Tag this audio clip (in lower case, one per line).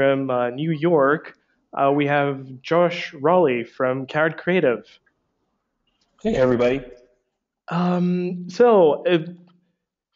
speech